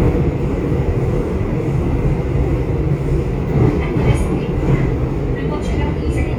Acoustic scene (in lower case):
subway train